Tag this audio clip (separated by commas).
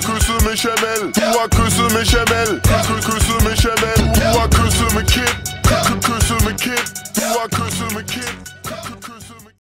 Music